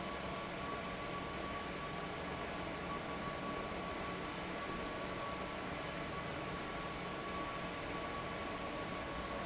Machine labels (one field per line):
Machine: fan